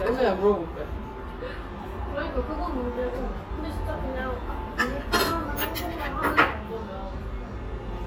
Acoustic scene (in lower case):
restaurant